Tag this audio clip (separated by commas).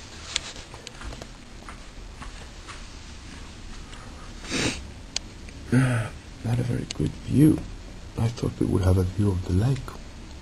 Speech, outside, rural or natural